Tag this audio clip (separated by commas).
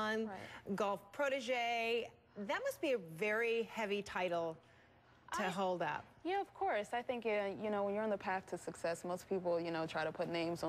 Speech